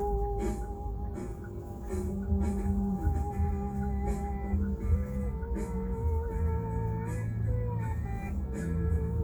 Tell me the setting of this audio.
car